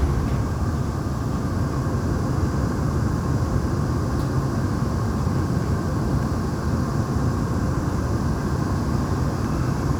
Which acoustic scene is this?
subway train